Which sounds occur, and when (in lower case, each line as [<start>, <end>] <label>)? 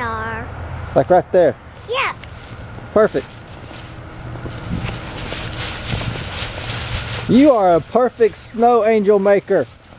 [0.00, 0.45] kid speaking
[0.00, 9.64] conversation
[0.00, 9.95] mechanisms
[0.00, 9.95] wind
[0.92, 1.19] man speaking
[1.32, 1.48] man speaking
[1.71, 2.04] surface contact
[1.86, 2.11] kid speaking
[2.15, 2.19] tick
[2.22, 2.52] surface contact
[2.74, 2.79] generic impact sounds
[2.93, 3.22] man speaking
[2.93, 3.38] surface contact
[3.54, 3.90] surface contact
[4.36, 4.49] generic impact sounds
[4.62, 4.99] wind noise (microphone)
[4.63, 7.92] scrape
[4.86, 4.93] generic impact sounds
[5.27, 5.34] generic impact sounds
[5.46, 5.54] tick
[5.81, 6.04] generic impact sounds
[5.83, 6.21] wind noise (microphone)
[7.23, 7.78] man speaking
[7.94, 9.66] man speaking
[8.12, 8.53] scrape
[8.43, 8.74] tweet
[9.02, 9.74] tick